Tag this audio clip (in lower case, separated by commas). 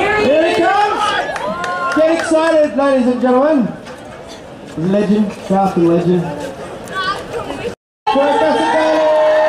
speech